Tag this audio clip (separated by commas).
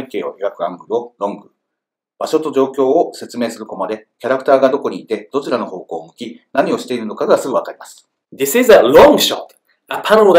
Speech